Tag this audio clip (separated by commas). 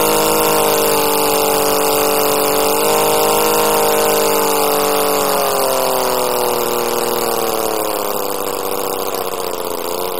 Engine, Medium engine (mid frequency)